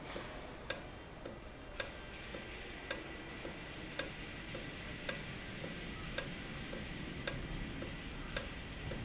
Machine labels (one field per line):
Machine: valve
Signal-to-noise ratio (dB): 0 dB